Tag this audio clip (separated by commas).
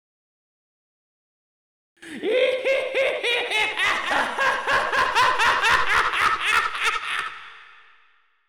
Laughter, Human voice